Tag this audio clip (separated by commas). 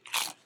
mastication